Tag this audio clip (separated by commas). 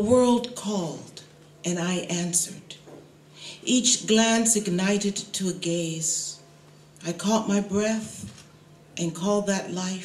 Speech